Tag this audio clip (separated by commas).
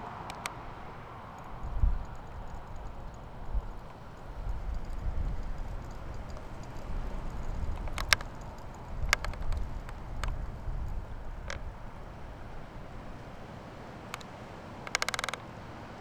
Wind